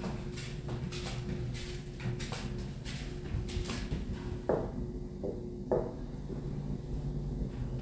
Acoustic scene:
elevator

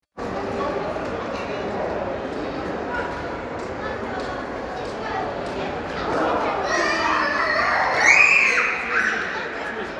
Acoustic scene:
crowded indoor space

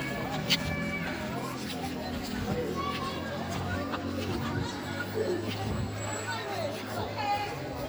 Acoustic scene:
park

